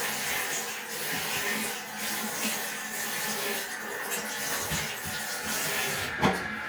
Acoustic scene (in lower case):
restroom